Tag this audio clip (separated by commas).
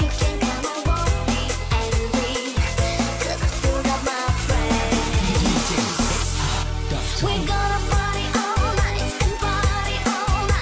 Music, Dance music